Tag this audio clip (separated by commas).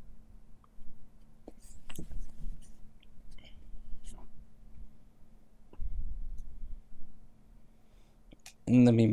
Speech, Silence